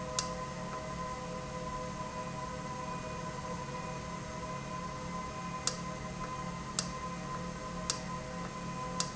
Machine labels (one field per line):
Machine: valve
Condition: normal